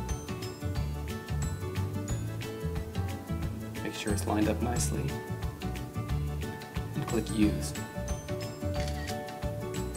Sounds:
Single-lens reflex camera, Speech, Music

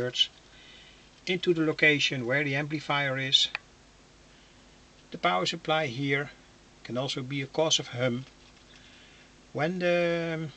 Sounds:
Speech

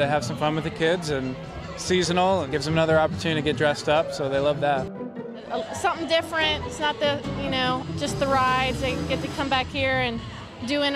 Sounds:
Speech

